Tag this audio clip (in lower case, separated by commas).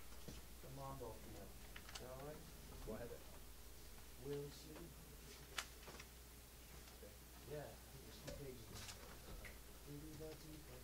speech